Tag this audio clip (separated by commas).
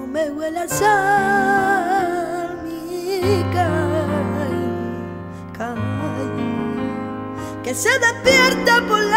Music